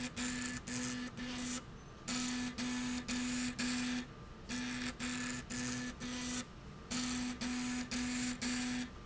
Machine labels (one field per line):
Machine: slide rail